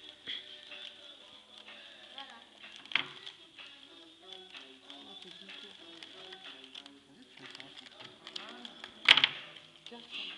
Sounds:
Speech, Music

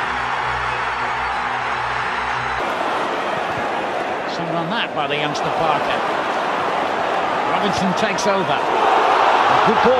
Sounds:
people cheering

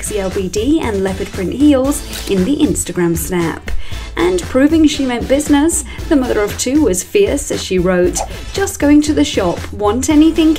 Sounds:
Speech, Music

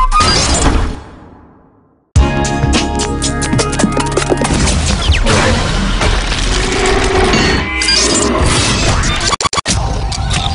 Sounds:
Shatter, Music, Sound effect

